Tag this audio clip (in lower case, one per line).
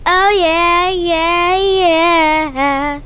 singing
human voice